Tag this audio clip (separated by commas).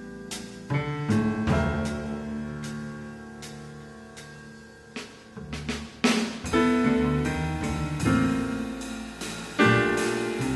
Music, Percussion